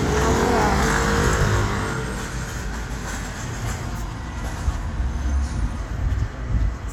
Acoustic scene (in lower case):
street